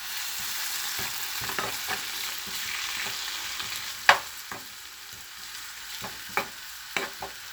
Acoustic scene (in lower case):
kitchen